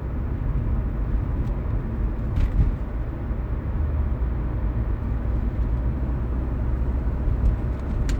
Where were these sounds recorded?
in a car